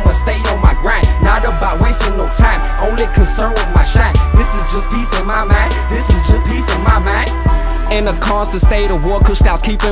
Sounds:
music

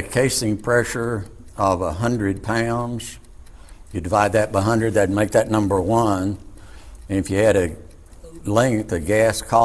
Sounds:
speech

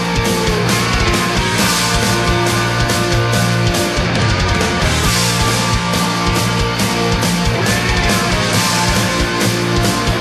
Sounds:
music

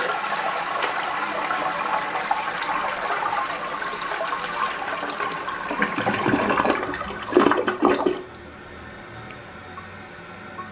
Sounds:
toilet flush

